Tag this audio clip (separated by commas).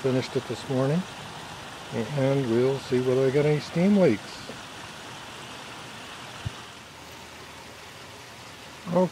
Rustle